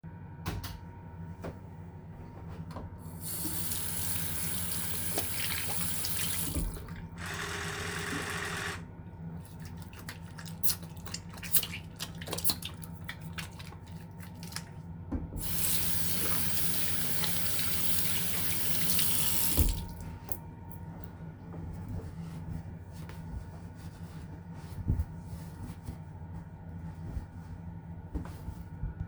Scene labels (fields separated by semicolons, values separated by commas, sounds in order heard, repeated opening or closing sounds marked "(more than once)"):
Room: bathroom; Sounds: light switch, running water